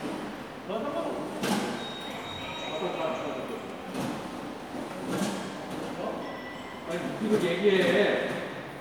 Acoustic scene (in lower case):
subway station